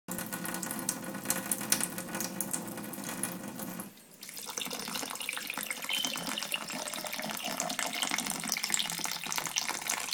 Water is running and splashing on a surface, then it gurgles and splashes and fills a container